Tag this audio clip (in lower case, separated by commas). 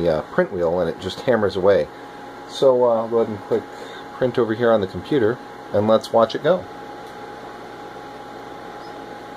speech, printer